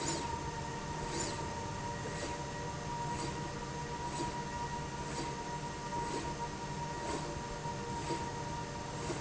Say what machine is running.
slide rail